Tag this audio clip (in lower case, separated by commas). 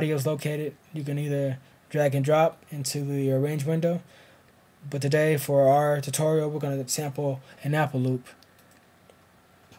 speech